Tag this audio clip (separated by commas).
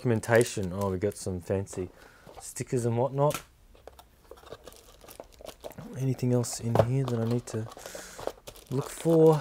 Speech, crinkling